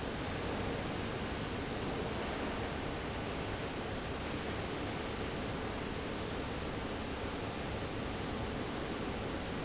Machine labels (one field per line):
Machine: fan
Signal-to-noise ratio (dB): -6 dB